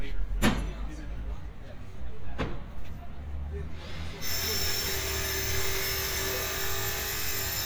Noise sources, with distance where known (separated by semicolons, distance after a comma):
rock drill, near